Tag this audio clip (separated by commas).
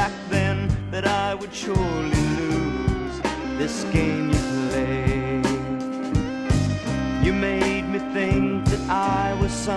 Music, Male singing